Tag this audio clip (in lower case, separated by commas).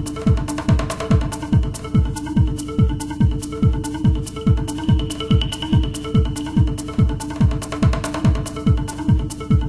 sound effect, music